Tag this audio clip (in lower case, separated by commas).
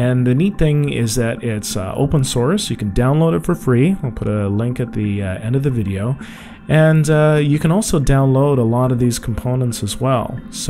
speech, music